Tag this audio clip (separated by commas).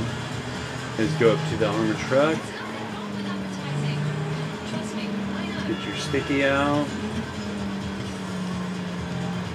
Car, Music, Speech